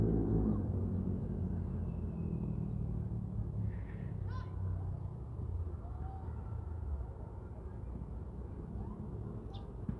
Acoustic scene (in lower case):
residential area